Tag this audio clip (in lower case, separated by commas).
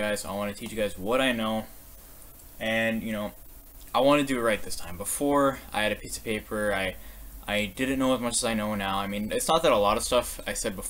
speech